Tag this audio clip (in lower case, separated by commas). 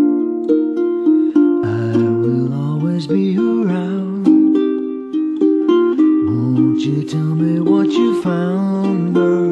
ukulele, music